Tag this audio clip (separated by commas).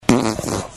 Fart